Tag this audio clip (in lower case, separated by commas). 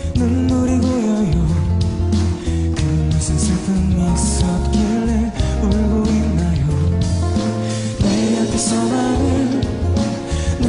music